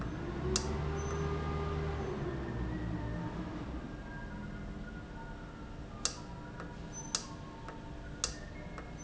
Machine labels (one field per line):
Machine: valve